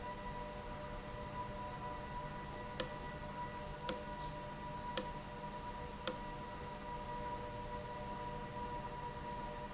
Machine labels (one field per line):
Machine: valve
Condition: abnormal